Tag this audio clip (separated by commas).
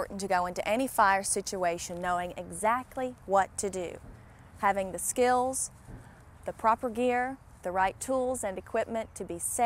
Speech